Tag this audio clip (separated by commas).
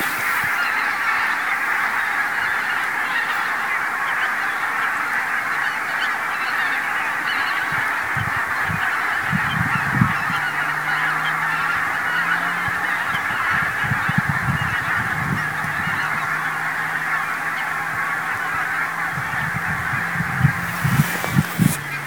livestock, Animal, Fowl